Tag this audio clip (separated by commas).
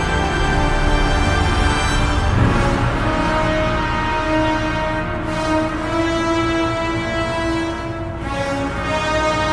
Music